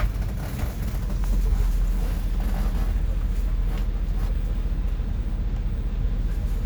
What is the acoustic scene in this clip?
bus